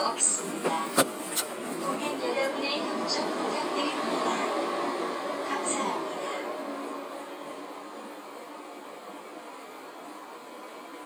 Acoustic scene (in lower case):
subway train